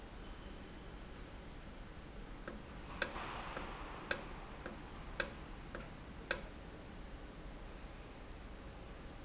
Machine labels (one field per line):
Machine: valve